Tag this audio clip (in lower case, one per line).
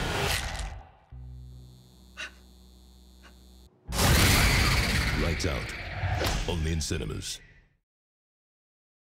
speech